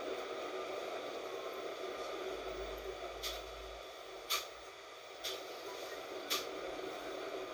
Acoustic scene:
bus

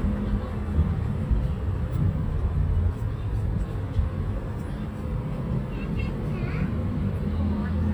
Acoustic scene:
residential area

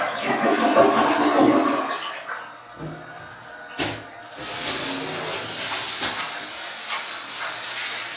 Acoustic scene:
restroom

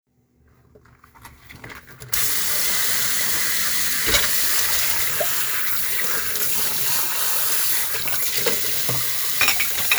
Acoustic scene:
kitchen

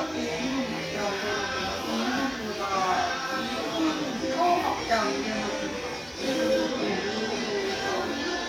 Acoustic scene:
restaurant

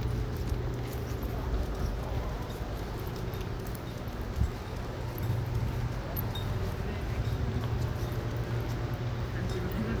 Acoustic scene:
residential area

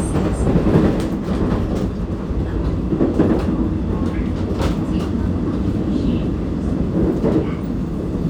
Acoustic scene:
subway train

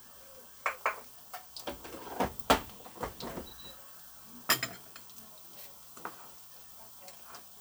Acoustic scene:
kitchen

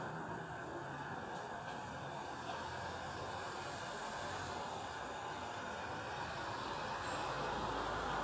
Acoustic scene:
residential area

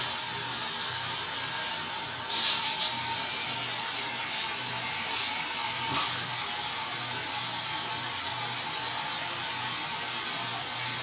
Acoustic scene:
restroom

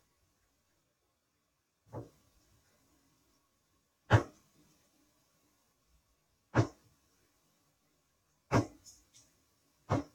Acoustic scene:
kitchen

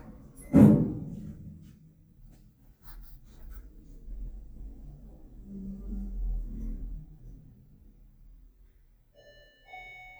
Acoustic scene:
elevator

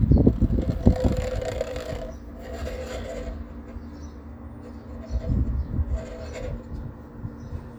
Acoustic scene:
residential area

